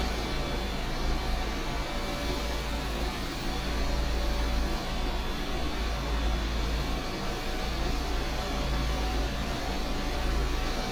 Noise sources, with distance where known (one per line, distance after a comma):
engine of unclear size, far